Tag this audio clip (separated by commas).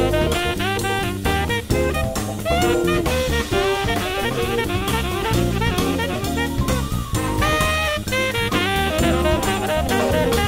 Brass instrument, playing saxophone, Saxophone